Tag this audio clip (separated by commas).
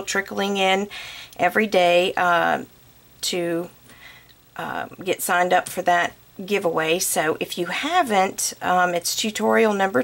Speech